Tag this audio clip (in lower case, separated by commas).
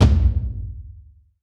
bass drum, thump, musical instrument, music, drum, percussion